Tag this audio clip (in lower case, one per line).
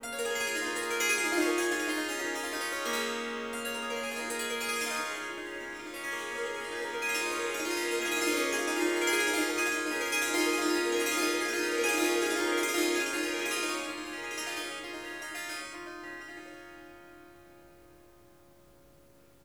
musical instrument
music
harp